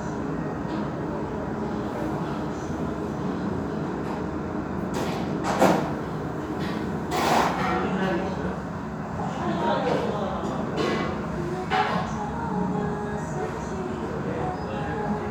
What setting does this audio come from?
restaurant